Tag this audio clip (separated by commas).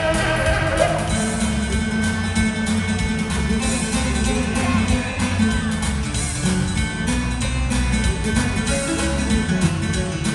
Rock and roll, Music